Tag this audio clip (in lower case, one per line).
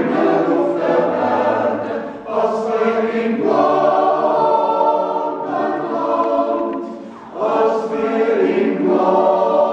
yodelling